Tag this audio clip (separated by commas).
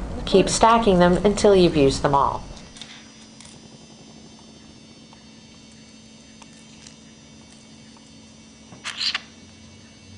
Speech, kid speaking